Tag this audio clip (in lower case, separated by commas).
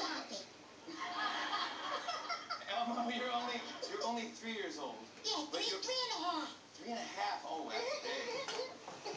speech, inside a small room